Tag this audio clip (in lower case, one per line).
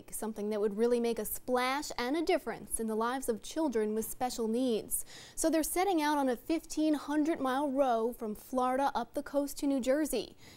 speech